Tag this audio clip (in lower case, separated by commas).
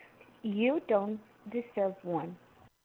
human voice